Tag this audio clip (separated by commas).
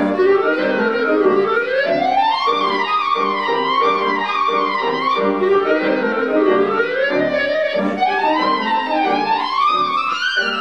playing clarinet